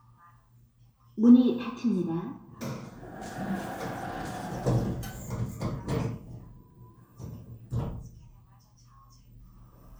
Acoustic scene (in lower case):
elevator